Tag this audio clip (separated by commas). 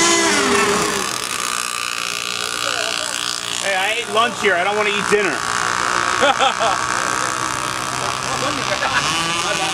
Speech, outside, rural or natural